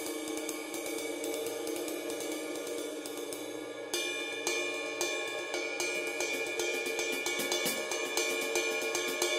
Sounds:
Music, Musical instrument, Cymbal, Snare drum, Hi-hat, Drum, Drum kit

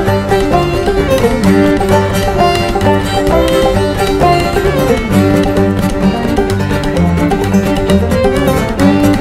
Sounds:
Music, Bluegrass

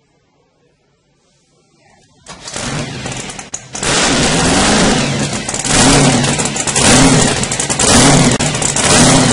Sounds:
Vehicle, Speech

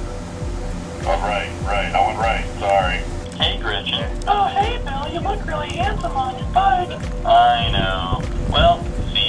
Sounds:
Speech, Music

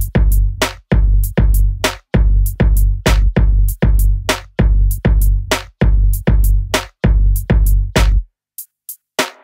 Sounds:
Music

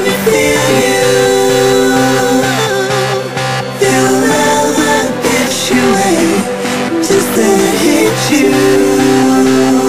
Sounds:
Music

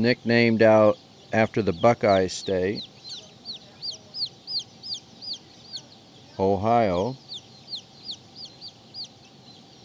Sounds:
Chicken, Speech

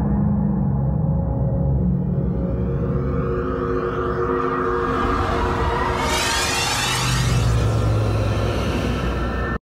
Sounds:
Music

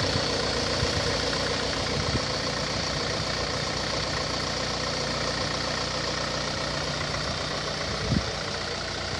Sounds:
Engine, Accelerating, Medium engine (mid frequency), Idling, Vehicle

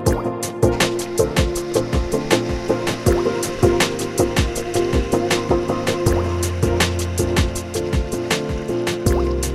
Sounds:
Stream, Music

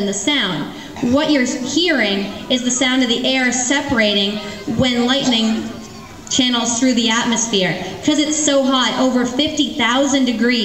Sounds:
Speech

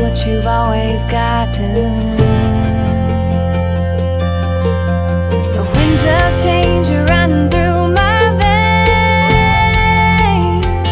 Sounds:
Music

